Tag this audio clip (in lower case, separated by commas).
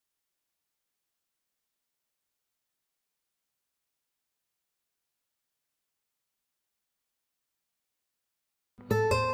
musical instrument, music, guitar, plucked string instrument